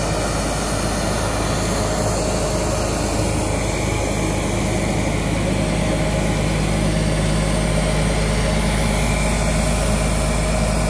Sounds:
Vehicle, outside, urban or man-made

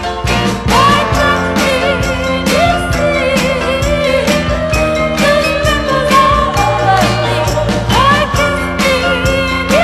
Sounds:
Music

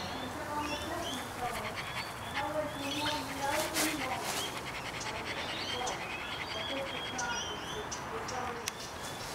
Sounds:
Animal, pets, Dog, Bird, Speech

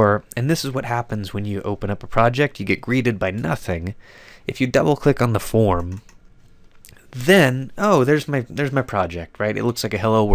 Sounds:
Narration

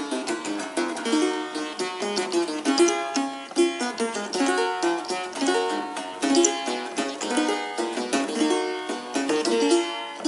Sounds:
playing harpsichord

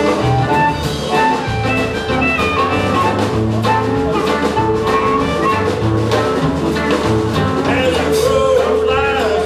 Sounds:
Music

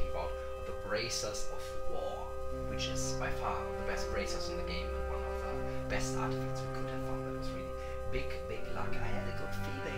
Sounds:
Speech, Music

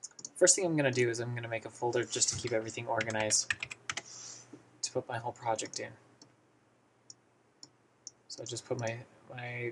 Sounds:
Speech

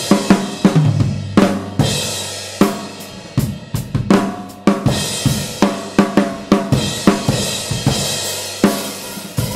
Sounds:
Snare drum, Music

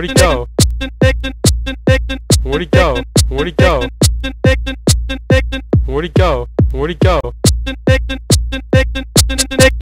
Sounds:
Sampler, Music

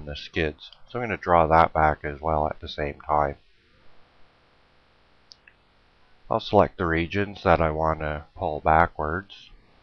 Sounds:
Speech

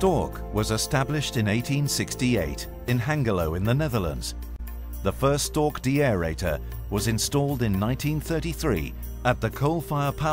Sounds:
Speech, Music

